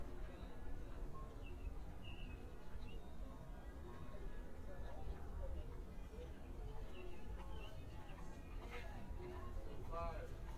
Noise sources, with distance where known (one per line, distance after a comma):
music from an unclear source